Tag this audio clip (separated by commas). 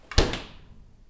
Door, Domestic sounds, Slam